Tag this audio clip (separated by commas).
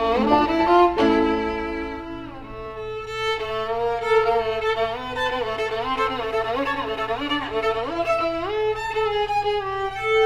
fiddle, Musical instrument, Music, playing violin